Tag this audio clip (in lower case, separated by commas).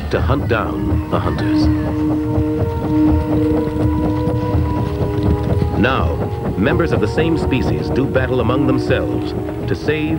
speech, music